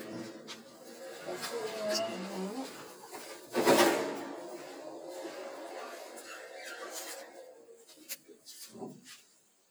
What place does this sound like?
elevator